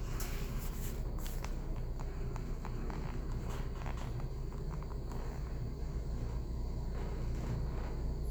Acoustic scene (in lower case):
elevator